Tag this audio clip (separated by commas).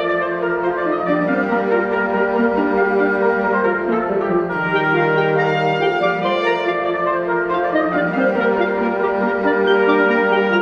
Music